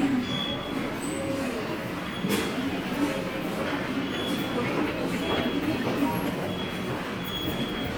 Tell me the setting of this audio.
subway station